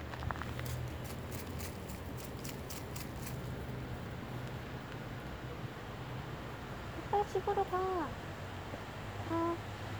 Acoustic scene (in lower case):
residential area